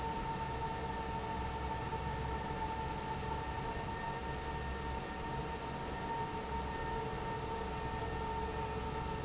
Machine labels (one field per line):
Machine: fan